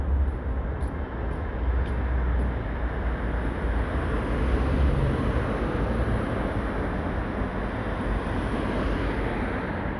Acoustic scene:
street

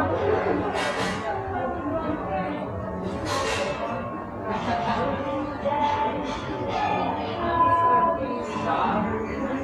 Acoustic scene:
cafe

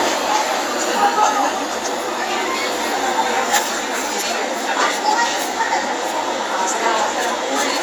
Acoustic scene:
crowded indoor space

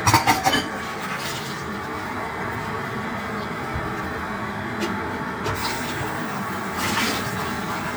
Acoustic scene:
kitchen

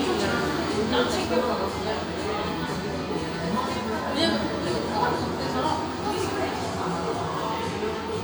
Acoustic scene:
cafe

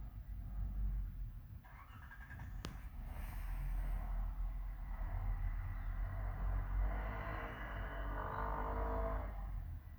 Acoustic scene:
residential area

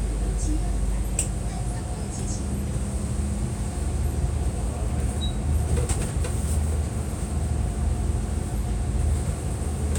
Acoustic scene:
bus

